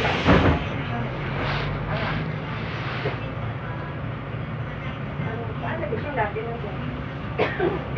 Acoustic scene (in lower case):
bus